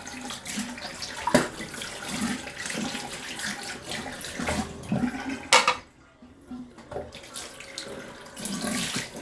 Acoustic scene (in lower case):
restroom